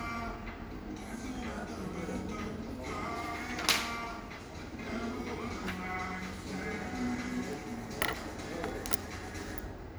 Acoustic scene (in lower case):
cafe